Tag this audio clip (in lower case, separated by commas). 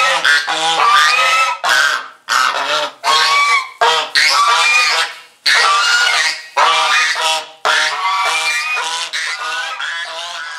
goose honking